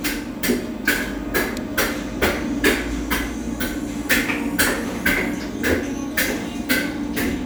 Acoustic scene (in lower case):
cafe